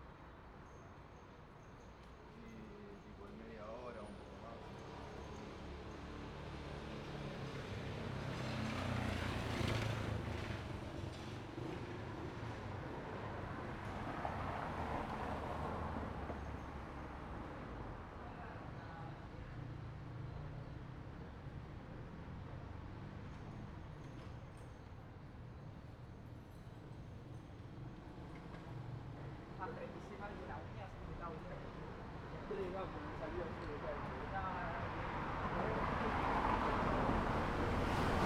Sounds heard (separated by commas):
bus engine accelerating, people talking, car wheels rolling, motorcycle, motorcycle engine accelerating, car, bus